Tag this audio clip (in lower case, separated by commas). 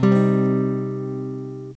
musical instrument, guitar, plucked string instrument, acoustic guitar, music, strum